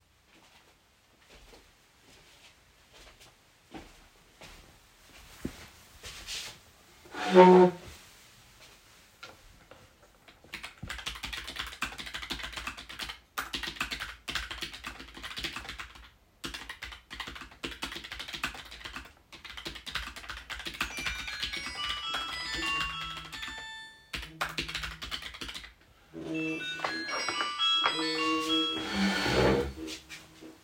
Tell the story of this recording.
I came to the desk and sat to start typing. While I was typing the phone started ringing and vibrating.